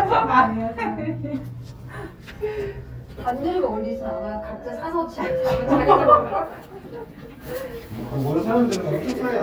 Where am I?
in an elevator